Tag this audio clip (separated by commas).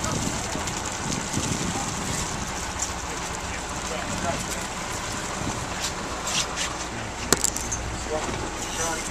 Vehicle, Speech, speedboat